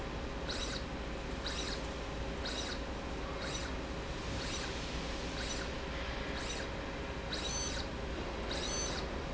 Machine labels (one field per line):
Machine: slide rail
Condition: abnormal